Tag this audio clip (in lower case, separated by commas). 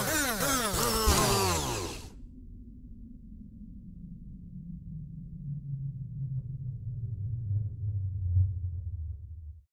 sound effect